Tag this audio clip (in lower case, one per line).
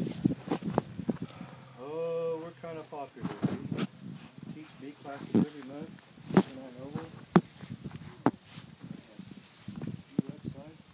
cricket
insect